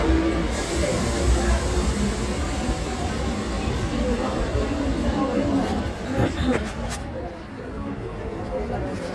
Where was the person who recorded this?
in a subway station